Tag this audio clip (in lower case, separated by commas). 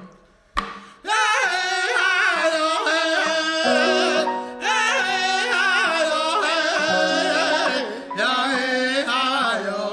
music